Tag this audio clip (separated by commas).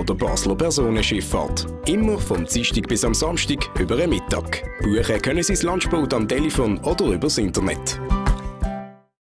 Speech, Music